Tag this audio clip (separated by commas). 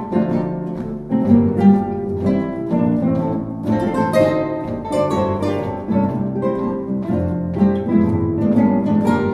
Guitar, Musical instrument, Music, Plucked string instrument, Acoustic guitar, Orchestra